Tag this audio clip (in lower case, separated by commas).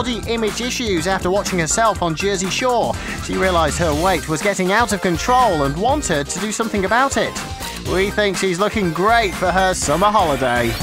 music, speech